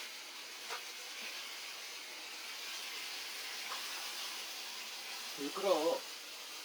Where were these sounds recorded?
in a kitchen